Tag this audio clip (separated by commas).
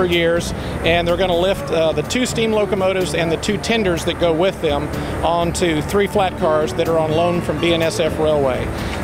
Heavy engine (low frequency), Music, Speech